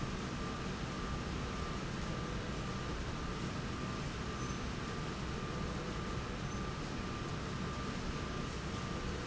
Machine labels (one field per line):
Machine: slide rail